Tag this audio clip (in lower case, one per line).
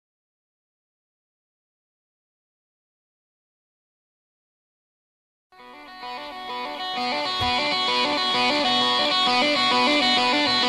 music